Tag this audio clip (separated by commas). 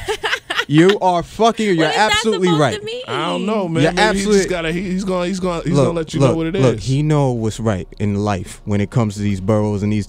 Speech